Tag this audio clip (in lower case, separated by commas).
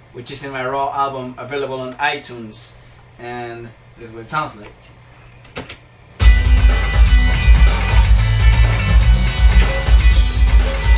musical instrument, music, speech, plucked string instrument, bass guitar, guitar, strum